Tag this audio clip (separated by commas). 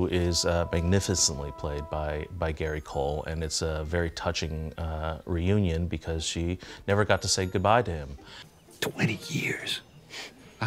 Speech